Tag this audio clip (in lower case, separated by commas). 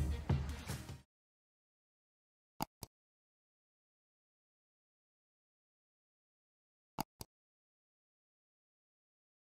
strike lighter